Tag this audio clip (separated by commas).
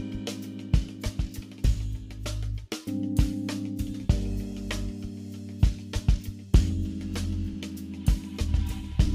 Music